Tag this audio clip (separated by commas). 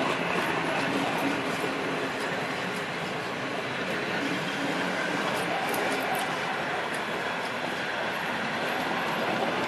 Rail transport, Train, train wagon, Clickety-clack